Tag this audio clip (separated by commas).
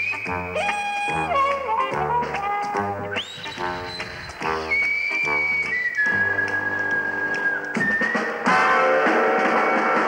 Music